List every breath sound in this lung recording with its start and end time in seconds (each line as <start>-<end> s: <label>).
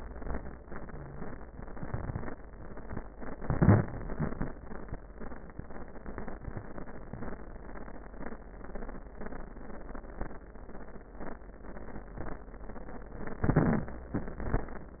3.29-4.02 s: inhalation
3.29-4.02 s: crackles
13.42-14.15 s: inhalation
13.42-14.15 s: crackles